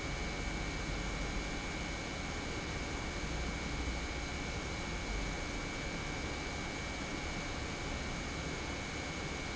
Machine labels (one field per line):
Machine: pump